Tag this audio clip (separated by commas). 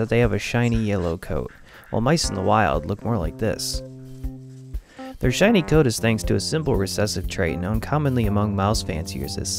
Patter, mouse pattering